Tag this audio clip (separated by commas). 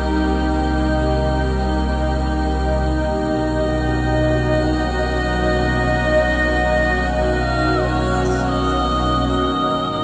Singing, New-age music, Background music, Music